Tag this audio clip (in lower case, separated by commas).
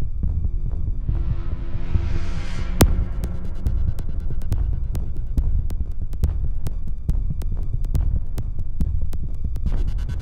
background music, music, soundtrack music